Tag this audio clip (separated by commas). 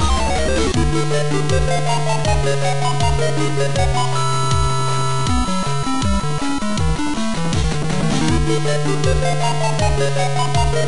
Video game music, Music